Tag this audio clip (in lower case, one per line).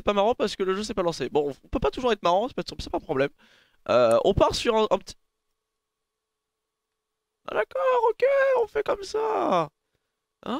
speech